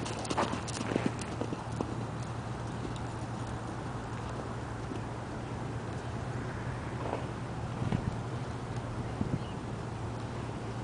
A horse speeds down a path, wind blows